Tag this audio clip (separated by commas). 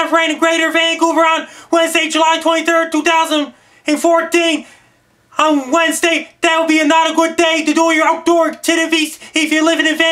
Speech